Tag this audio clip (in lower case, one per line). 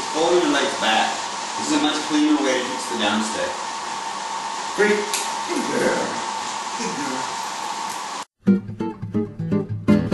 speech
music